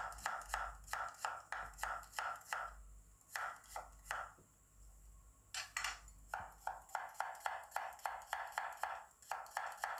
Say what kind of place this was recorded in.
kitchen